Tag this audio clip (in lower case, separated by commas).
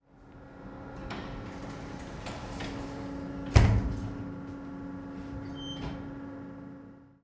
home sounds, door, slam, sliding door